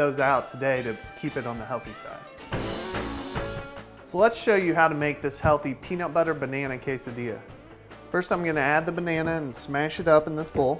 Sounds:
Music, Speech

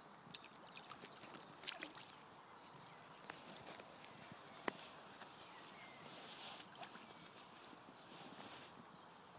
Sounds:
Animal, outside, rural or natural

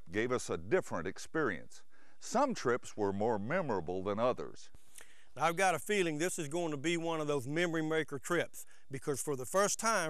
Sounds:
Speech

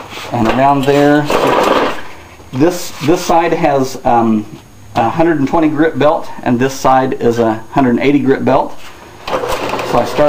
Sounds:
Tools, Speech

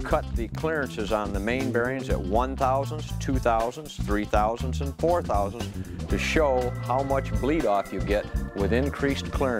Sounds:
Speech, Music

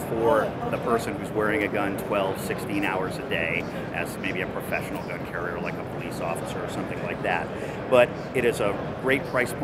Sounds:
Speech

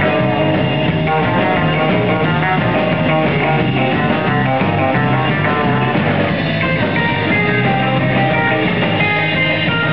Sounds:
Music

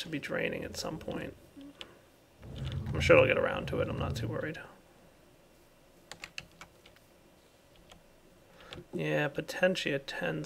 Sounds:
Computer keyboard, Speech

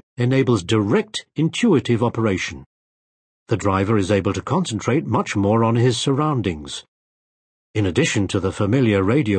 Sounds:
Speech

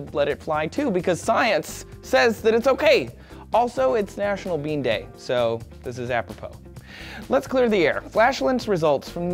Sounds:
Speech, Music

